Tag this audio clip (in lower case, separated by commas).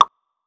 drip, liquid